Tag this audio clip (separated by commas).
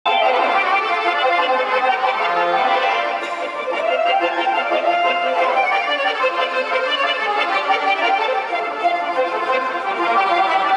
Accordion, Music